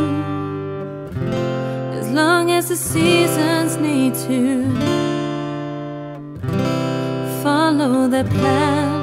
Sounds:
Music

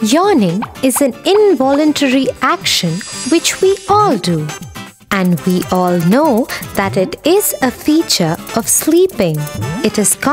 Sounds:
Speech, Music, Music for children

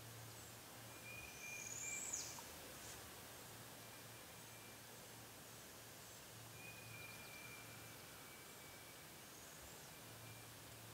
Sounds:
Bird, Animal

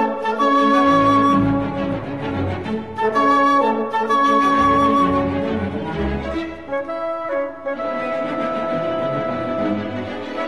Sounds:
Music

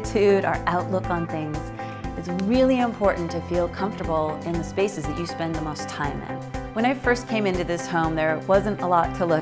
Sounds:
Speech, Music

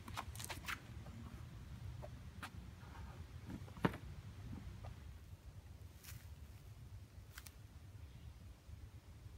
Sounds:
golf driving

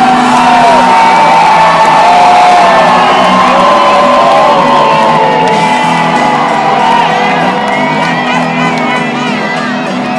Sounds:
Crowd, Cheering

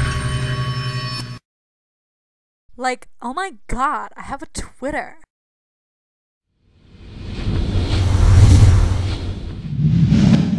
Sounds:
Speech, Music

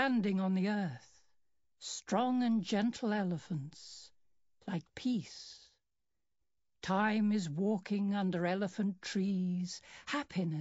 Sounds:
Speech

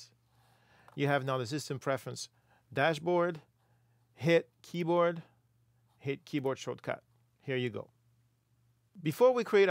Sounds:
Speech

